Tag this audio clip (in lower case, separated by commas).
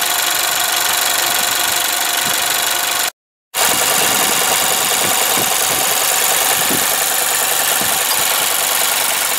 car engine idling